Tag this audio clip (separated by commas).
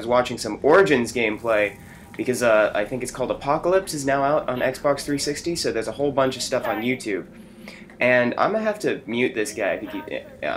Speech